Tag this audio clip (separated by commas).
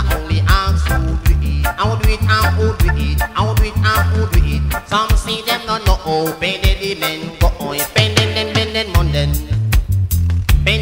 Music